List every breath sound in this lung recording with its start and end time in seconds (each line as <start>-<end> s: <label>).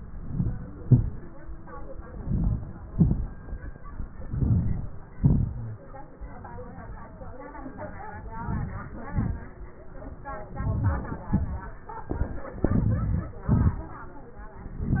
0.00-0.59 s: inhalation
0.82-1.38 s: exhalation
2.22-2.76 s: inhalation
2.93-3.40 s: exhalation
4.30-4.93 s: inhalation
5.19-5.61 s: exhalation
8.42-8.85 s: inhalation
9.11-9.56 s: exhalation
10.66-11.14 s: inhalation
11.32-11.77 s: exhalation
12.66-13.33 s: inhalation
13.50-13.97 s: exhalation